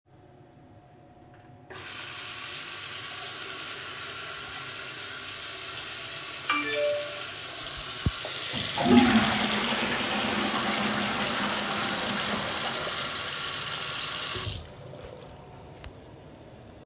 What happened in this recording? I was in the bathroom with the ventilation fan running. I opened the faucet and while the water was running a phone notification could be heard. While the water was still running I flushed the toilet and then closed the faucet.